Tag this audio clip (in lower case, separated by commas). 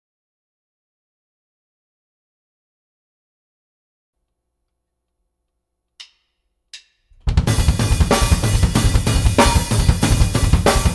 playing bass drum, music, bass drum